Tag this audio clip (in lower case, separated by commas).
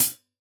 hi-hat, musical instrument, percussion, cymbal, music